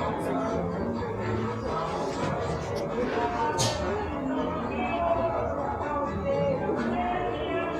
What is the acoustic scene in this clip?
cafe